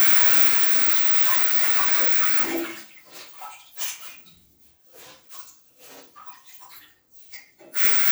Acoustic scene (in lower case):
restroom